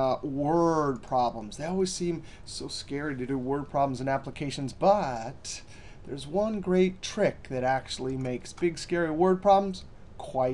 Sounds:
speech

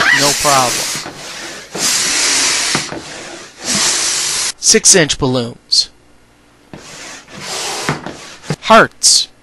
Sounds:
speech

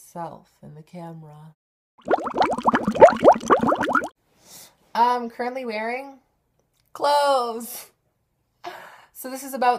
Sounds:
speech

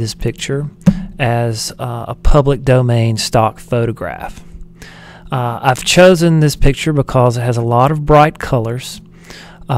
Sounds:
speech

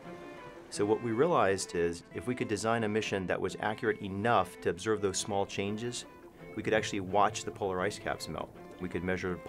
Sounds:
speech, music

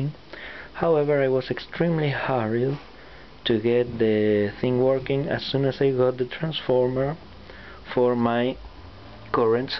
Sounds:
speech

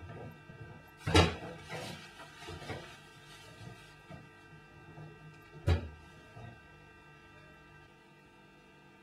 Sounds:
microwave oven

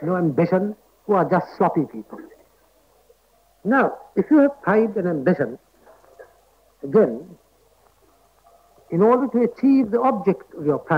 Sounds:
man speaking, speech

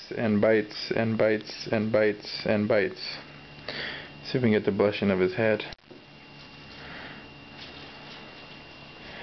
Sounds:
speech, inside a small room

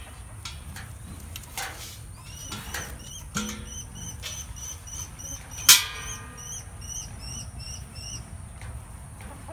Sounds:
animal, livestock

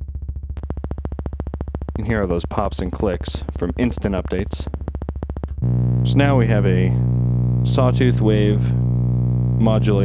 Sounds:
synthesizer, speech

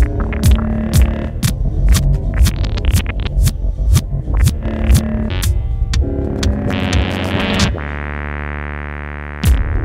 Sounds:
throbbing, music

